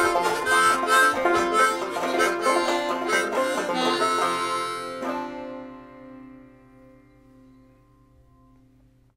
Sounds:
banjo
playing banjo
plucked string instrument
music
musical instrument

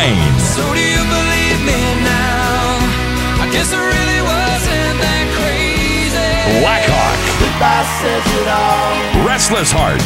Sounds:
music
jazz
new-age music
rhythm and blues
soundtrack music

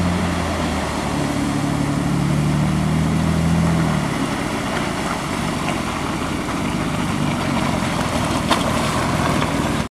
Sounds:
stream

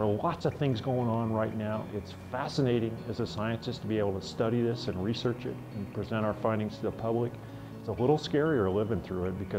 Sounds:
music
speech

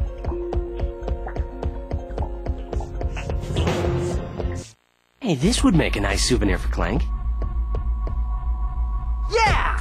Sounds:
speech

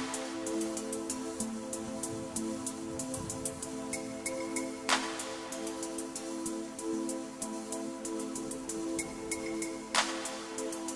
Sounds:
music

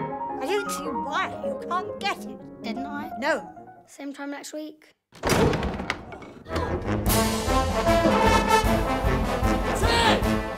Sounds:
piano
speech
music

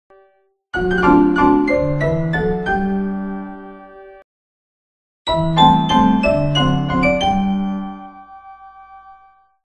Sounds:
music

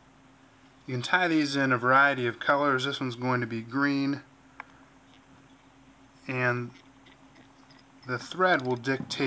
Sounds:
speech

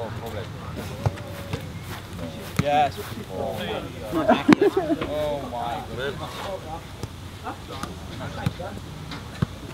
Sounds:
speech

